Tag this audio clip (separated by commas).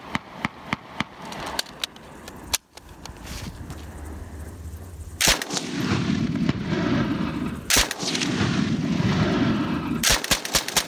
machine gun shooting